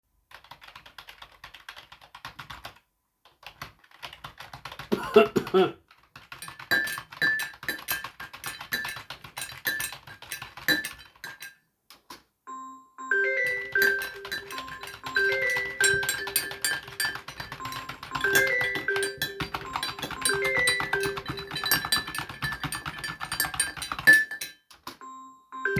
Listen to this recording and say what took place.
With the device placed statically, I produced keyboard typing and cutlery or dish sounds while the phone was ringing. The three target events overlap clearly for part of the recording.